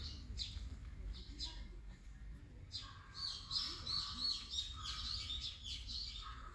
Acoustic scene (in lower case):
park